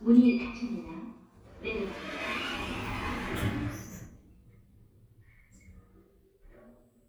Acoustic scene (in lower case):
elevator